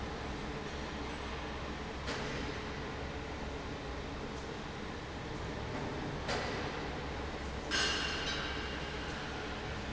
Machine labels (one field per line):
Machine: fan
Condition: normal